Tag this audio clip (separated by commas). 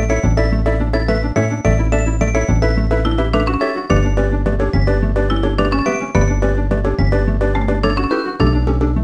Soundtrack music, Music